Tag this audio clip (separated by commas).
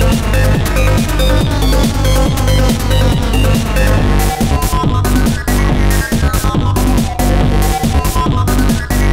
Trance music, Music